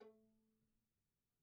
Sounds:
Bowed string instrument, Music, Musical instrument

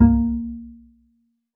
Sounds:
Musical instrument, Music, Bowed string instrument

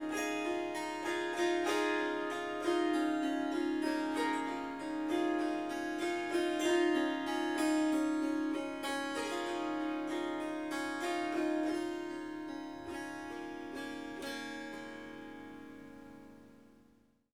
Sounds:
Harp, Music, Musical instrument

